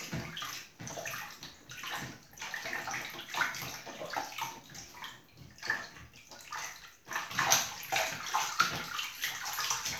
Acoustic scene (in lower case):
restroom